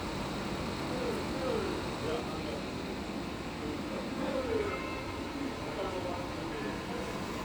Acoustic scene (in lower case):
street